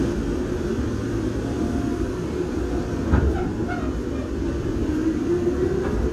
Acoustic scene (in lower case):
subway train